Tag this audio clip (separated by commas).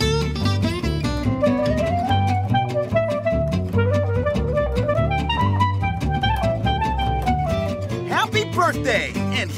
Music, Speech